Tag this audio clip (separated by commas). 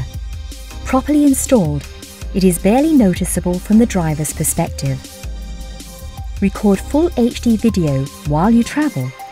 Speech, Music